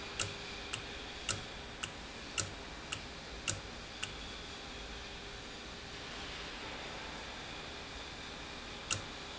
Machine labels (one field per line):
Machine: valve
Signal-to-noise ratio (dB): 0 dB